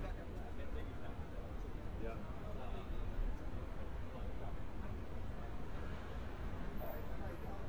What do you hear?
person or small group talking